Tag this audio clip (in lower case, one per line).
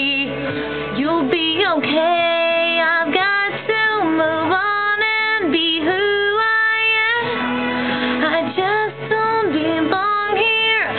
music
female singing